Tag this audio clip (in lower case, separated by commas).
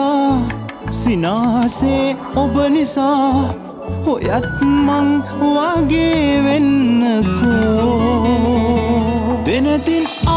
music, music of bollywood